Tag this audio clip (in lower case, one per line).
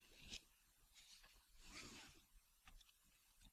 vehicle
car
motor vehicle (road)